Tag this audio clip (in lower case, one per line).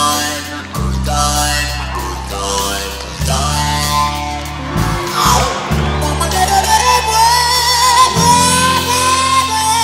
music
heavy metal
guitar